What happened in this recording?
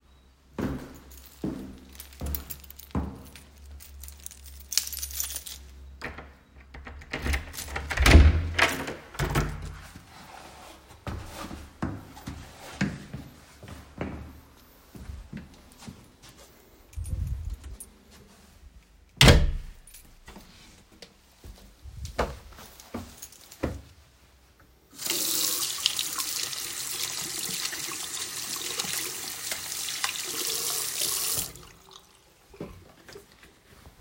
I arrive home, take my keychain, unlock and open the door, and enter the apartment. I close the door behind me, walk to the bathroom, and turn on the water to wash my hands.